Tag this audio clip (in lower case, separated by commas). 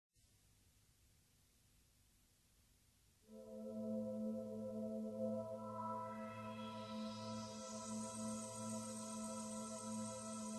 music